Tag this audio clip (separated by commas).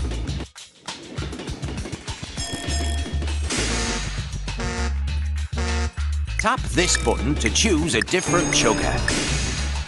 Music, Speech